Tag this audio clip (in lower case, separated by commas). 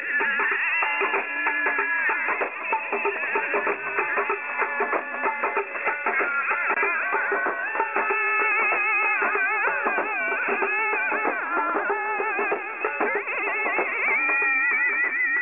singing, human voice